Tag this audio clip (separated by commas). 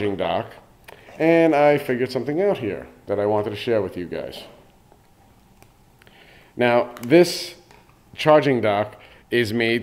Speech